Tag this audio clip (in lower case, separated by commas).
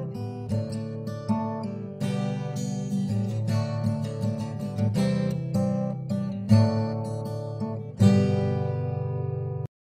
music, strum, plucked string instrument, guitar, acoustic guitar, musical instrument